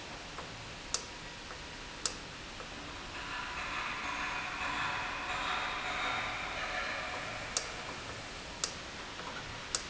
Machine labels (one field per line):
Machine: valve